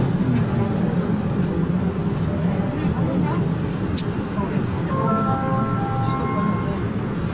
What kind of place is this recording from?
subway train